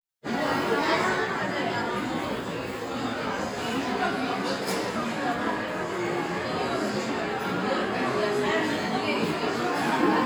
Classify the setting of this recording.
restaurant